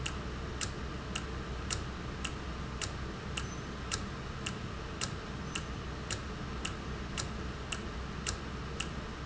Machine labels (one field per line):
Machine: valve